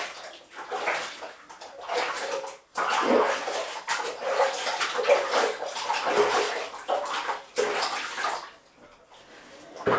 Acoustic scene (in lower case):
restroom